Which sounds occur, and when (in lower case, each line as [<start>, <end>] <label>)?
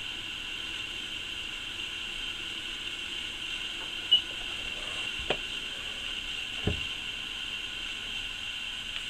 [0.01, 9.05] mechanisms
[5.16, 5.45] generic impact sounds
[6.55, 7.02] generic impact sounds